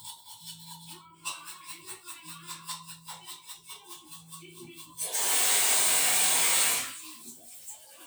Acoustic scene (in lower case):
restroom